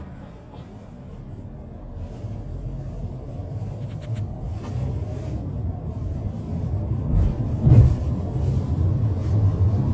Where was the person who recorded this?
in a car